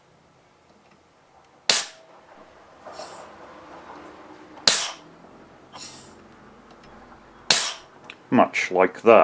Someone is firing a cap gun